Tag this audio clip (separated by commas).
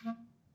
Musical instrument, Music, Wind instrument